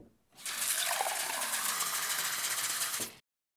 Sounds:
Liquid, Fill (with liquid)

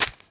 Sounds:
Crumpling

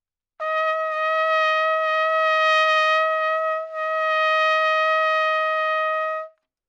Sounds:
Musical instrument, Trumpet, Music, Brass instrument

